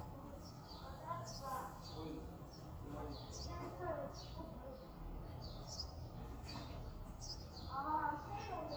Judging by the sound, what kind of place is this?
residential area